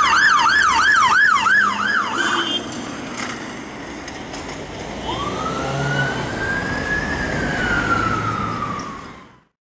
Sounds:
police car (siren)

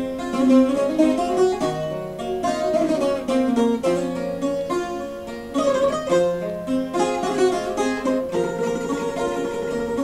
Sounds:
plucked string instrument, ukulele, musical instrument, music

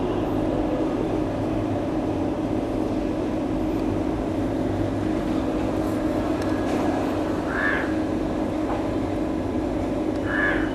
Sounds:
animal

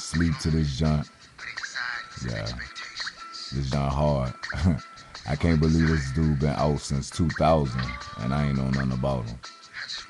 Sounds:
music, speech

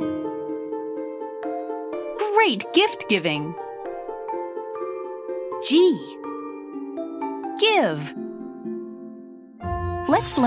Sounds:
speech, music

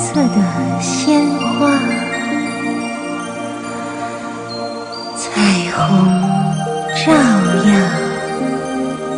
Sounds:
music

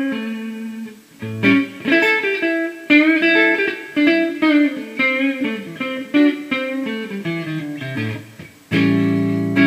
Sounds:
guitar, acoustic guitar, strum, musical instrument, music

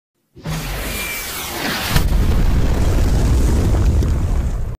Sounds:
explosion, bang

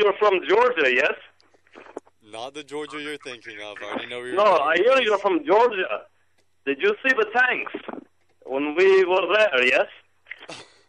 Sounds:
speech, radio

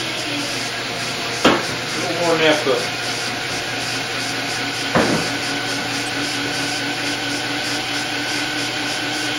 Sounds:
engine

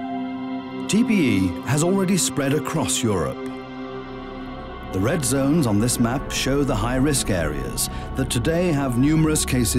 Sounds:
music, speech

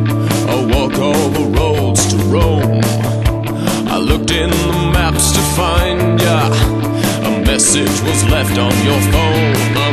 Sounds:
male singing, music

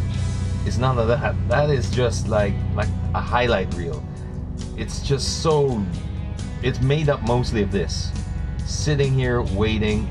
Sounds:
speech, music

